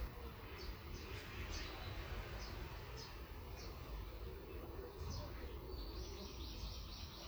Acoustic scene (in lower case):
park